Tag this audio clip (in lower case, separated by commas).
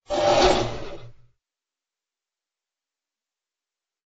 engine